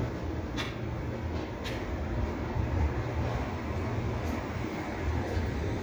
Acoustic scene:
residential area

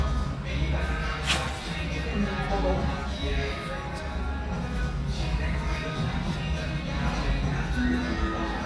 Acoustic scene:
restaurant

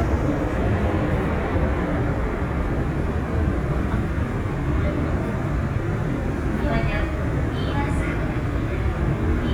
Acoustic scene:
subway train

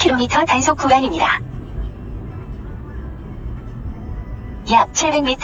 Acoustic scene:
car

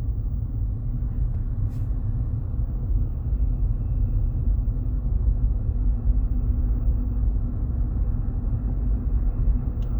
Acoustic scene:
car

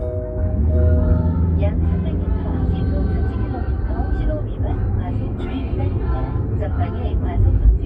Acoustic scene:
car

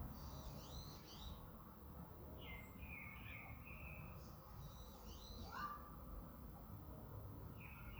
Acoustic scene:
park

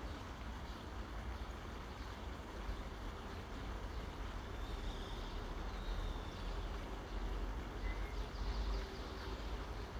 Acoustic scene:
park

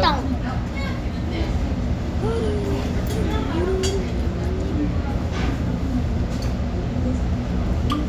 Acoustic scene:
restaurant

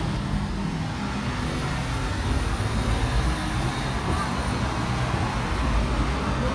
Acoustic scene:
street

